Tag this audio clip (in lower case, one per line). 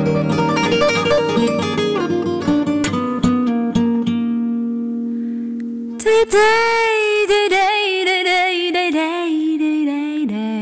music